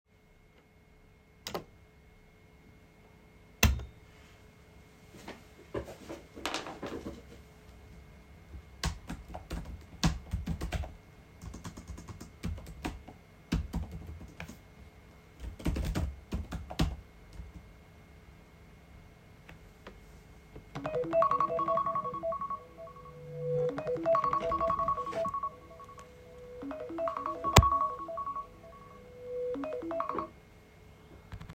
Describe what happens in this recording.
I flicked on the light and sat down at my desk. I started typing on the keyboard to get some work done. After a while, my phone started ringing on the desk.